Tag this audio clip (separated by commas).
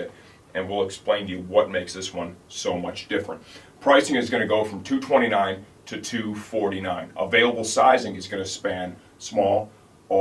Speech